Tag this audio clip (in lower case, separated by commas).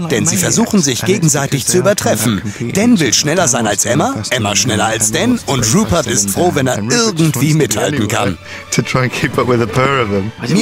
speech, music